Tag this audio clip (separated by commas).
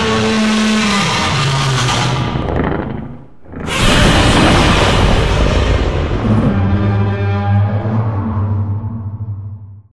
Sound effect